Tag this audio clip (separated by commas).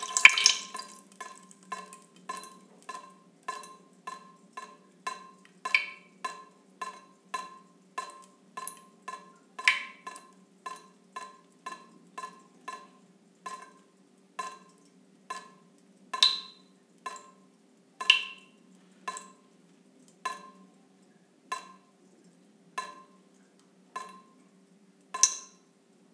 Water tap, home sounds, Liquid, Drip